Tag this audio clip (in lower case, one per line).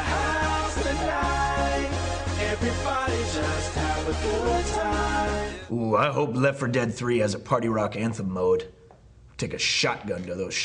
speech
music
techno